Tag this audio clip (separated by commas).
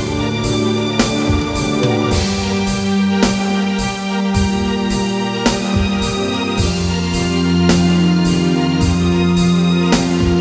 Music